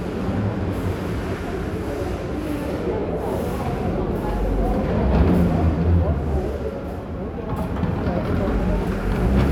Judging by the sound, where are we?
in a crowded indoor space